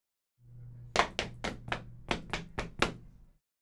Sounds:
run

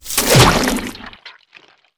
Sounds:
liquid
splash

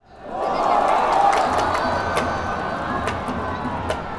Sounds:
crowd
human group actions

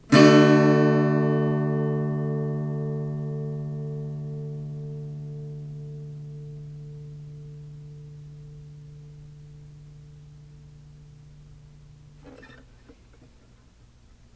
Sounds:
plucked string instrument
guitar
strum
musical instrument
music

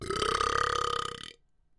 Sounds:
eructation

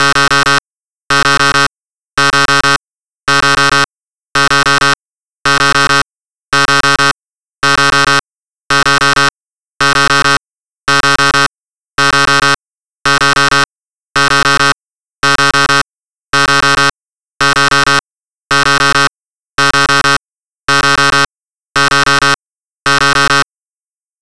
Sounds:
alarm

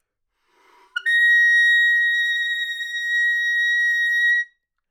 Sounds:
music
woodwind instrument
musical instrument

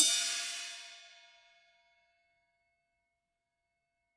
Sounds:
musical instrument
cymbal
percussion
hi-hat
music

